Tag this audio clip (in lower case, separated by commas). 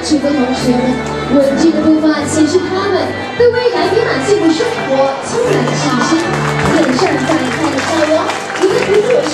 musical instrument, violin, speech, music